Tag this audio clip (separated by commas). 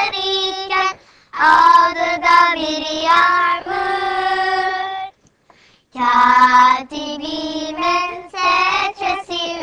Child singing, Female singing